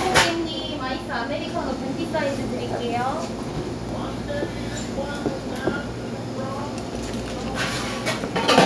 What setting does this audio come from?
cafe